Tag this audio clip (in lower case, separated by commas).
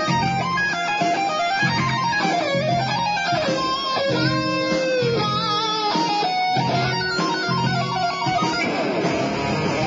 musical instrument, guitar, music, plucked string instrument, heavy metal